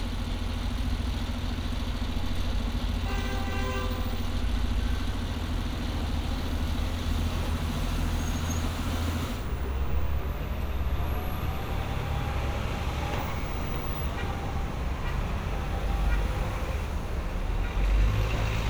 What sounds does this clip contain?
engine of unclear size, car horn